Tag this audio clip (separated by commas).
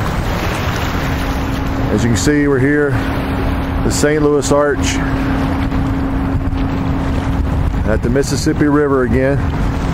Gurgling, Speech